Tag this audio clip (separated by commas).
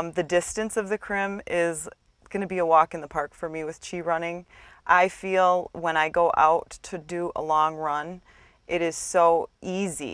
Speech